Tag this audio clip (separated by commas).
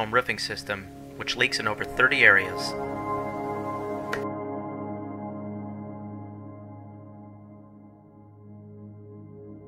Music, Speech